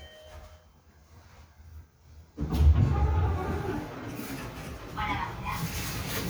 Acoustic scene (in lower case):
elevator